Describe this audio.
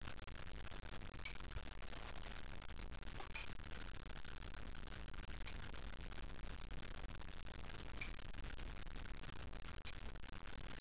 A clock ticks and rocks